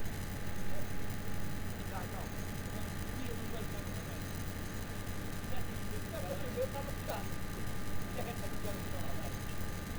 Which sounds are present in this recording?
person or small group talking